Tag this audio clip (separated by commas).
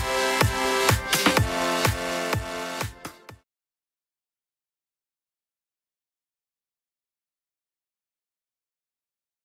Music